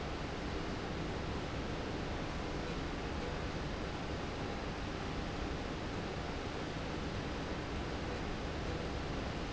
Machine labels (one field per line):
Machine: slide rail